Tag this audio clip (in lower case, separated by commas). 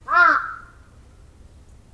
bird, crow, wild animals, animal